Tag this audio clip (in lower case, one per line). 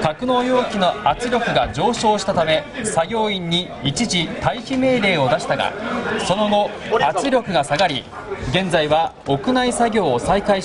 speech